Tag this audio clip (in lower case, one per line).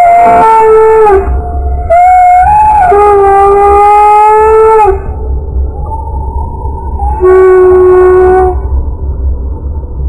animal